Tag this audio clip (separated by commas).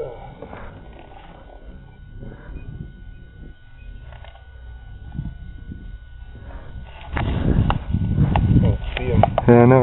Speech